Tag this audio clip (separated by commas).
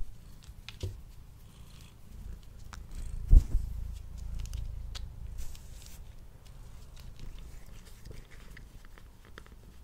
cat purring